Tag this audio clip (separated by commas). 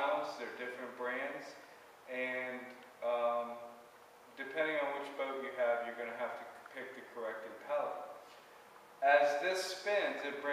Speech